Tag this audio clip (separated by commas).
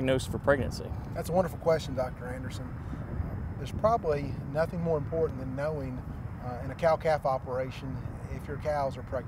Speech